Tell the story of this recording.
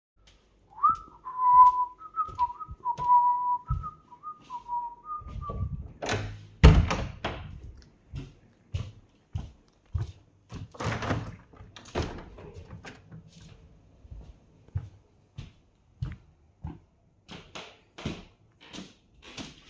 Opening door and closing a door, walking to a window, opening the window.